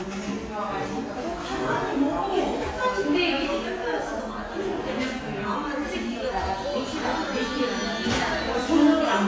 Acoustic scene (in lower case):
crowded indoor space